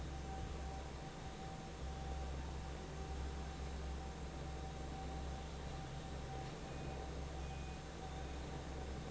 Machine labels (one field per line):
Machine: fan